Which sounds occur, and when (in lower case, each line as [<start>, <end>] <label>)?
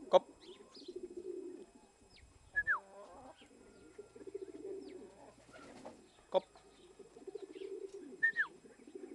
[0.00, 9.14] mechanisms
[0.06, 0.19] male speech
[0.37, 0.57] bird call
[0.68, 0.94] bird call
[0.72, 1.66] coo
[1.56, 1.62] tick
[2.06, 2.24] bird call
[2.48, 2.80] whistling
[3.28, 3.47] bird call
[3.49, 5.35] coo
[3.65, 4.01] bird call
[4.21, 4.60] bird call
[4.76, 5.02] bird call
[5.29, 6.00] flapping wings
[5.34, 5.66] bird call
[5.99, 6.22] bird call
[6.28, 6.46] male speech
[6.35, 6.89] bird call
[6.49, 6.62] generic impact sounds
[6.72, 8.27] coo
[7.31, 7.76] bird call
[7.83, 7.95] generic impact sounds
[8.21, 8.50] whistling
[8.23, 8.50] bird call
[8.49, 9.14] coo